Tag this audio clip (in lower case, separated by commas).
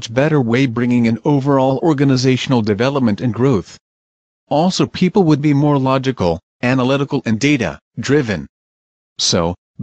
speech synthesizer